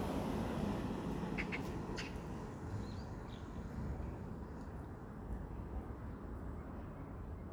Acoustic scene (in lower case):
residential area